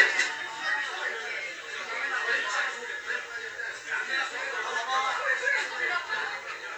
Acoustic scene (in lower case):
crowded indoor space